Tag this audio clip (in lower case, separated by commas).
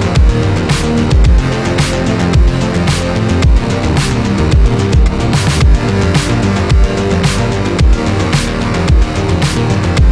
music